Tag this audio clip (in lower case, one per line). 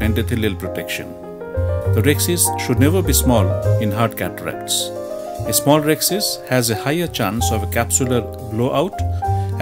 music
speech